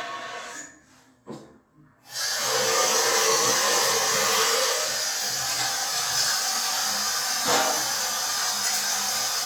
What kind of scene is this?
restroom